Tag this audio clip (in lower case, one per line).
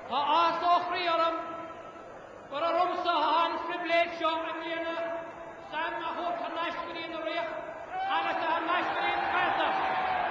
speech
male speech
monologue